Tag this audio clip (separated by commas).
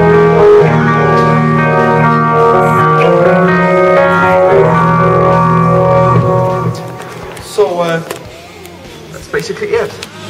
Guitar, Plucked string instrument, Musical instrument, Music